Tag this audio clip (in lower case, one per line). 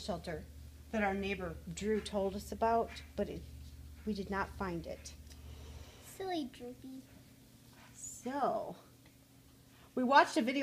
speech